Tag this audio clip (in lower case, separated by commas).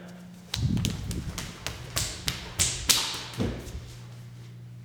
run